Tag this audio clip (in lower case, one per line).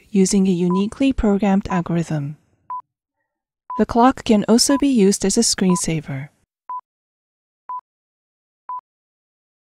speech